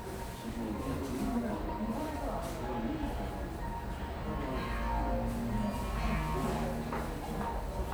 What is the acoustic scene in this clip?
cafe